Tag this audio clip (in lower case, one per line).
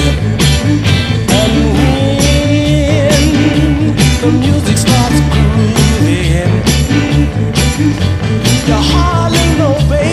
music